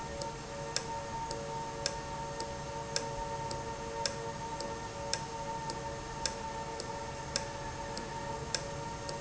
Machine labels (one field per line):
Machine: valve